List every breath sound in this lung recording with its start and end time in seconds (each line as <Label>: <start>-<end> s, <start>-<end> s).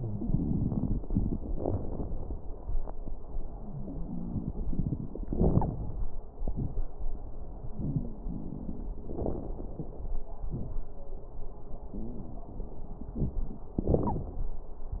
Wheeze: 7.72-8.20 s